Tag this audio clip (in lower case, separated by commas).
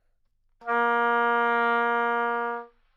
wind instrument, musical instrument, music